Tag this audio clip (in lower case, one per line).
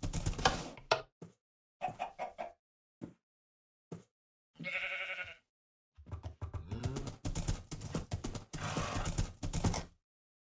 clip-clop